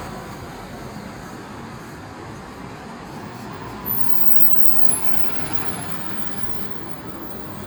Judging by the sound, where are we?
on a street